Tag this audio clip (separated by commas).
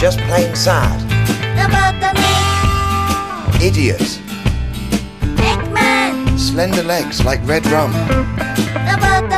Music, Speech